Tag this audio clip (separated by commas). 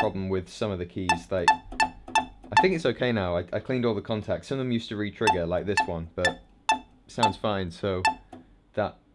Speech